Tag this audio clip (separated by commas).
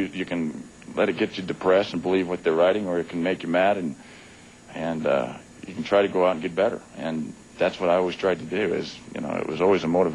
Speech, Male speech